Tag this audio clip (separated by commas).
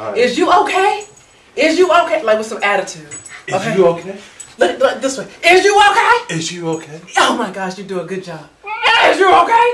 Speech, inside a large room or hall